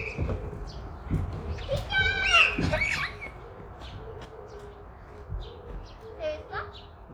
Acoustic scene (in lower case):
park